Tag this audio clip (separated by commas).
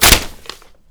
Tearing